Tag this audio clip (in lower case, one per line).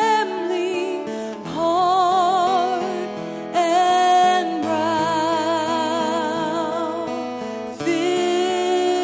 music